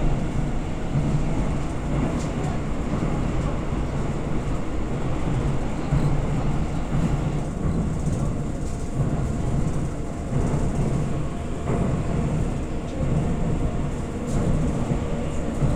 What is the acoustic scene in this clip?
subway train